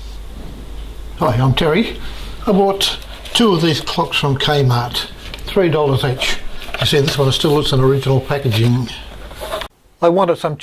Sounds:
Speech

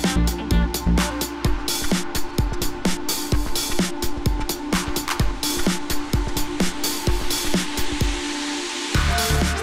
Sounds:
Music

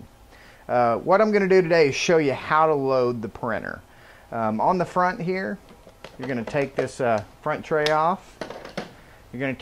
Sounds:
Speech

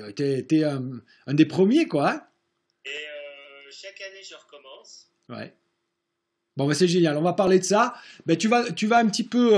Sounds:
Speech

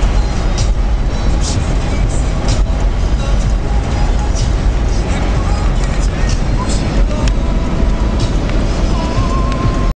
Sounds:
Vehicle, Music

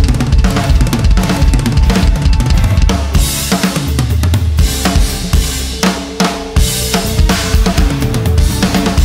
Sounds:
playing bass drum

